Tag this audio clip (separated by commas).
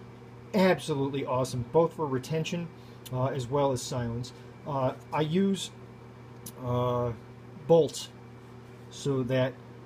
Speech